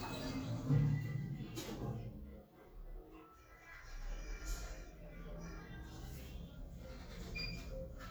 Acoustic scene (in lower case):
elevator